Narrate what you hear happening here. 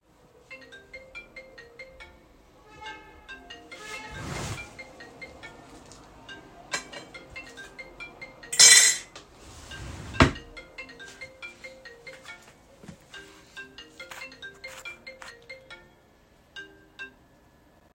My phone was ringing. I opened the drawer to get some cutlery and put it on my dish, then I closed the drawer. Finally, I walked to my phone and silenced it.